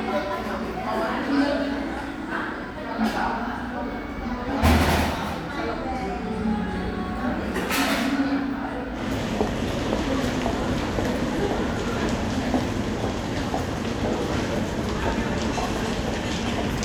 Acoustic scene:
crowded indoor space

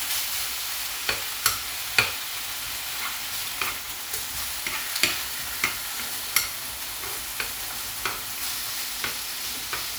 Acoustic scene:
kitchen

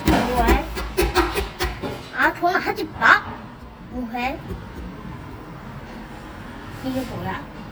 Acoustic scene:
cafe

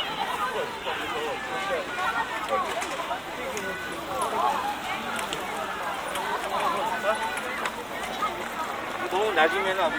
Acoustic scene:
park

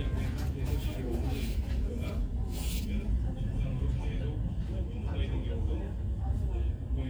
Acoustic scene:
crowded indoor space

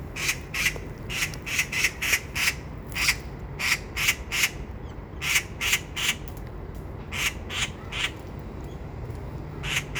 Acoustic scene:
park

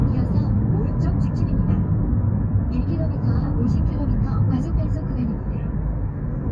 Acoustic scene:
car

